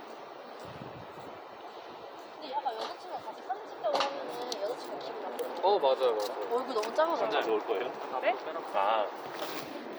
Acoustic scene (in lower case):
residential area